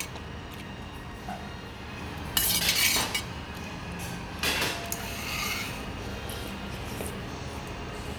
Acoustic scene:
restaurant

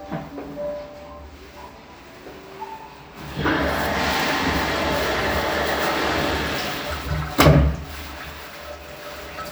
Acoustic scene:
restroom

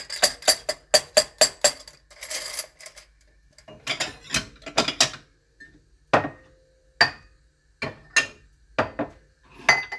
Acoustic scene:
kitchen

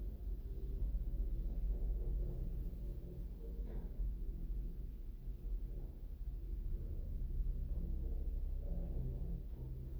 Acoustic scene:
elevator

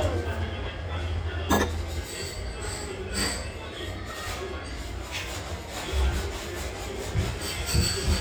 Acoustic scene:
restaurant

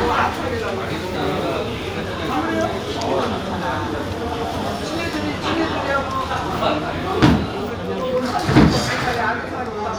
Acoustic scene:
crowded indoor space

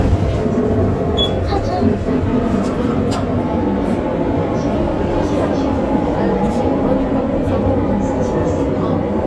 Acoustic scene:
bus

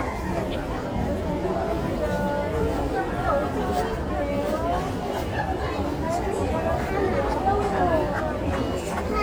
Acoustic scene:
crowded indoor space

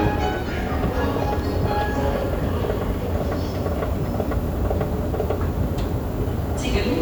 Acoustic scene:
subway station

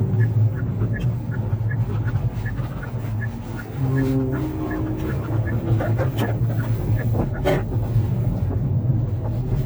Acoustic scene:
car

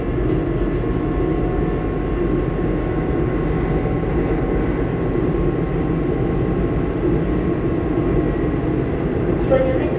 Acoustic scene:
subway train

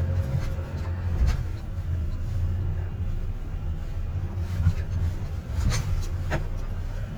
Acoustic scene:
car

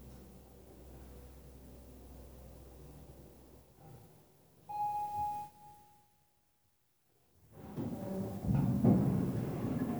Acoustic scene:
elevator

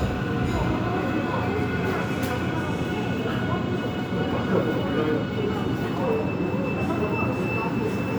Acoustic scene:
subway station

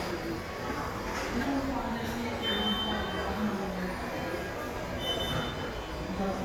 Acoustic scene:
subway station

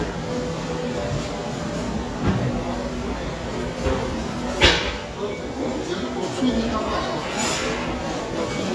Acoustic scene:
crowded indoor space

